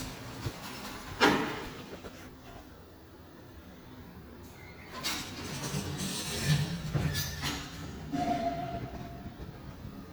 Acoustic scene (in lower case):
elevator